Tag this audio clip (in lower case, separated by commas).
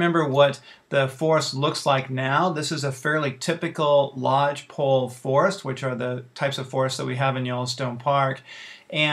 speech